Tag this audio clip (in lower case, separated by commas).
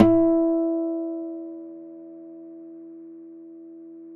guitar, plucked string instrument, musical instrument, acoustic guitar, music